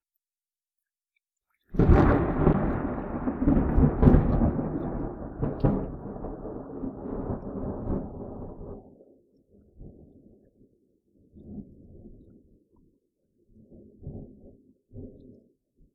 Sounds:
thunder, thunderstorm

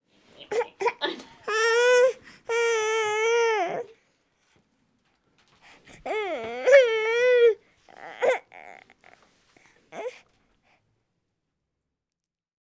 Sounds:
sobbing, human voice

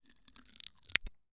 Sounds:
domestic sounds, scissors

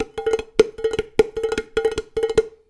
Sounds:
dishes, pots and pans, domestic sounds

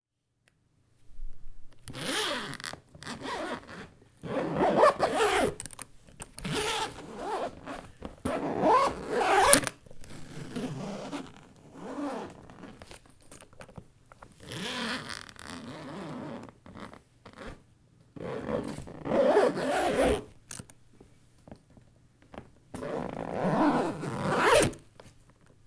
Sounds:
domestic sounds, zipper (clothing)

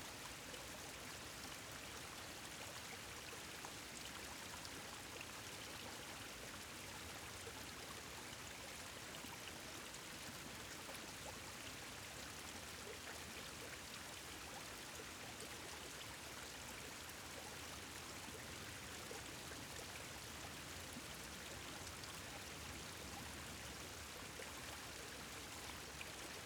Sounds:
stream, water

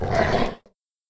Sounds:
dog, animal, growling, domestic animals

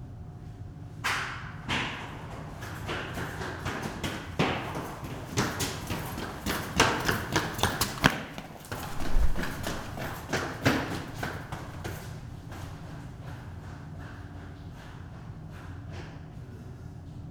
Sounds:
run

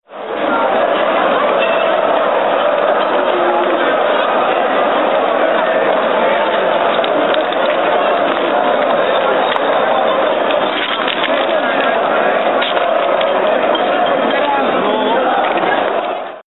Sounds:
crowd, human group actions

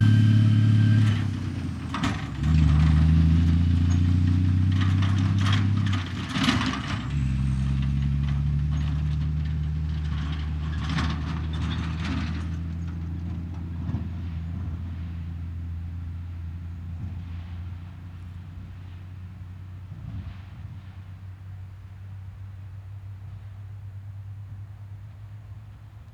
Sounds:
truck, motor vehicle (road), vehicle

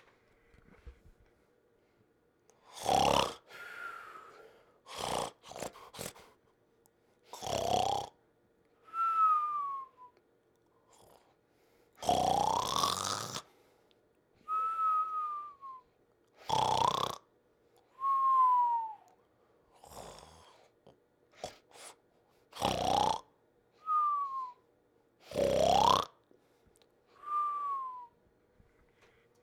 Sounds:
breathing, respiratory sounds

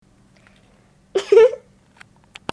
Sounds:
human voice, chortle, laughter

